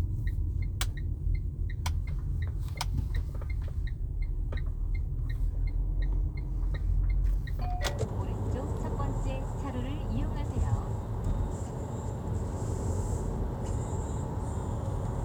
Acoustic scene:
car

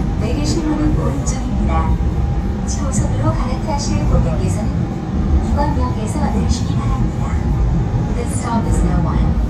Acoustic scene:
subway train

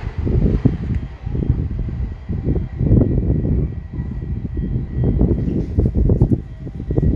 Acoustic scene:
residential area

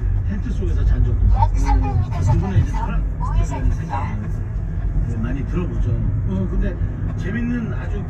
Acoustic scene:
car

